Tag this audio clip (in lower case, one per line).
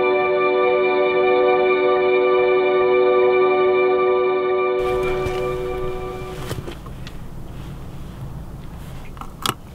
music